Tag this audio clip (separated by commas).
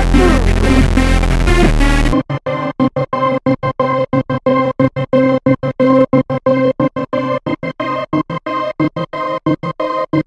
Synthesizer, Music